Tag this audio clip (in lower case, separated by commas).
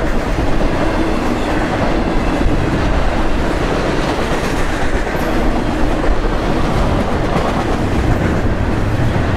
train, vehicle, train wagon, rail transport